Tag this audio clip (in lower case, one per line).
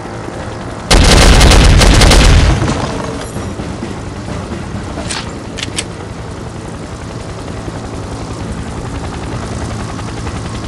boom
music